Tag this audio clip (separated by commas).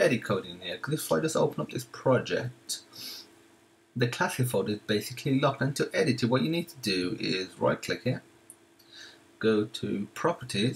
Speech